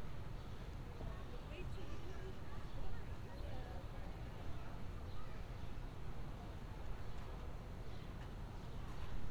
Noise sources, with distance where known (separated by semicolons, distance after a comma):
background noise